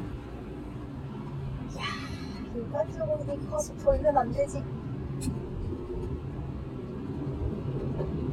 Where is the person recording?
in a car